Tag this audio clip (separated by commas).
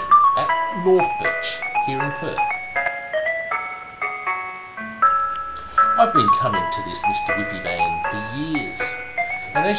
xylophone, Mallet percussion, Glockenspiel